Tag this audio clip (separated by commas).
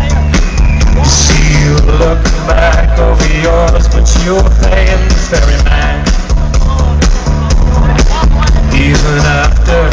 Music, Speech